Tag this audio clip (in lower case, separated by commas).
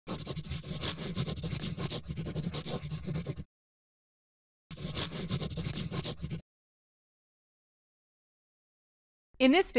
writing